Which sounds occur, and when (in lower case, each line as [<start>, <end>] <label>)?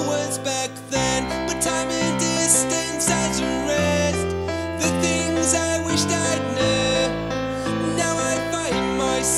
[0.01, 9.35] music
[0.03, 1.25] male singing
[1.62, 4.12] male singing
[4.42, 4.66] breathing
[4.74, 7.14] male singing
[7.51, 7.76] breathing
[8.01, 9.35] male singing